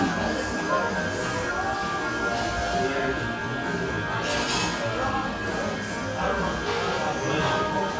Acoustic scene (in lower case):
cafe